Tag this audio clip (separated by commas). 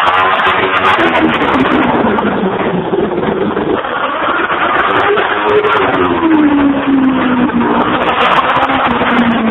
Car, Engine, Accelerating, engine accelerating, Vehicle